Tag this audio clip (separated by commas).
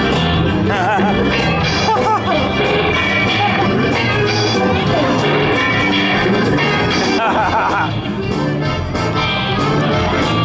Music, Speech